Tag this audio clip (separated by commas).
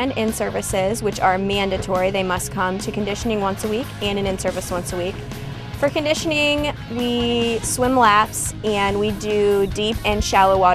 Speech, Music